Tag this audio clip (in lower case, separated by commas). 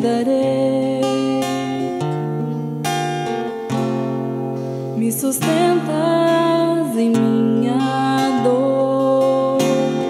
soul music, music